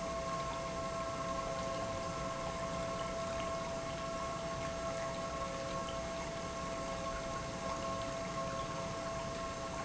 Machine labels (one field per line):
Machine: pump